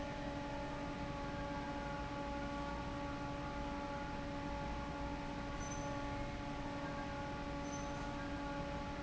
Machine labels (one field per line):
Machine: fan